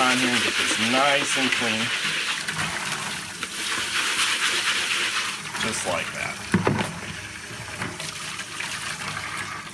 A man is speaking while running tap water and scrubbing an object